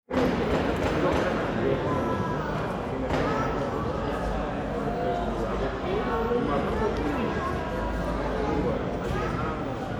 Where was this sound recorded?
in a crowded indoor space